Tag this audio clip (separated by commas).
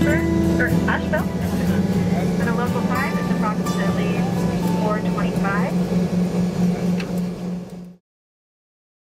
Speech, Music